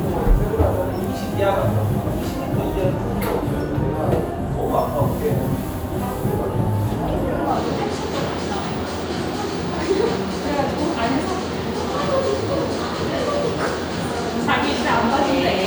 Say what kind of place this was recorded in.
cafe